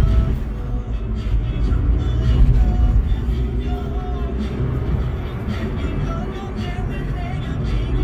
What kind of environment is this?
car